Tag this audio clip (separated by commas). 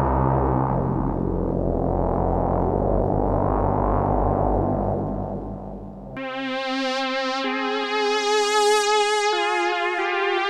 playing synthesizer